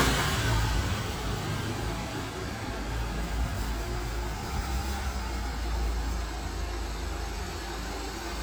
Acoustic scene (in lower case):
residential area